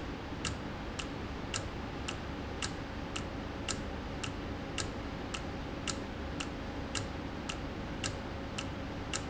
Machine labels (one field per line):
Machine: valve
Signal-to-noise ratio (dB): -6 dB